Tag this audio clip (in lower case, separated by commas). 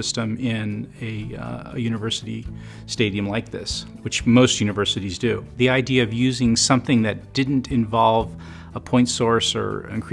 speech, music